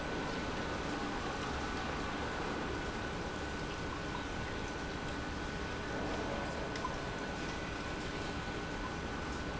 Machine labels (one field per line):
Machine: pump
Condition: normal